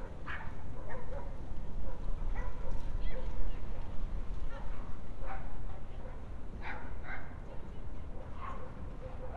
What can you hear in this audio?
person or small group talking, dog barking or whining